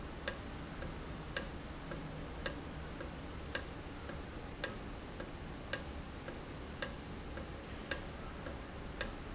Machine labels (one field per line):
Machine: valve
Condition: normal